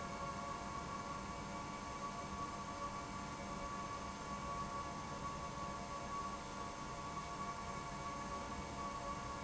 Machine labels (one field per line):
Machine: pump